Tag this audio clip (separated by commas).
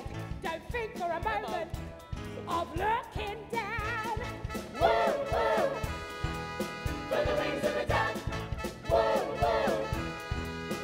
Music